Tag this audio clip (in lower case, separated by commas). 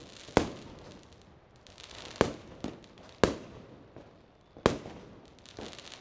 explosion, fireworks